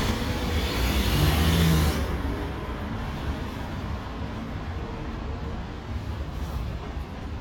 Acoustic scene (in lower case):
residential area